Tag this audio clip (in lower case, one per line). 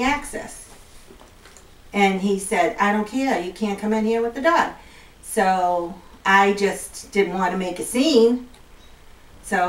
speech